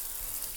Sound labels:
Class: water tap